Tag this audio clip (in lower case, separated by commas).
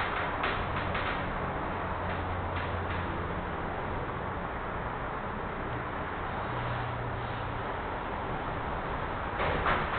train, vehicle, rail transport, train wagon